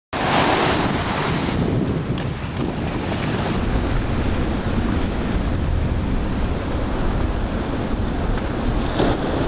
Water is crashing, wind is hitting microphone